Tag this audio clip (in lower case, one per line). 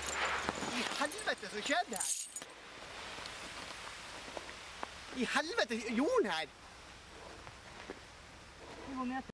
speech